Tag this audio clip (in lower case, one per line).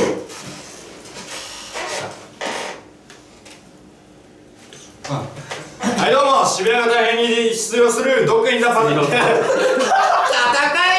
speech